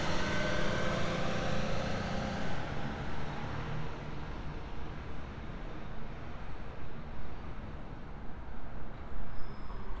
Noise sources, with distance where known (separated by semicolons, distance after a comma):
engine of unclear size, near